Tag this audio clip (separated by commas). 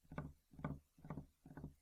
Tap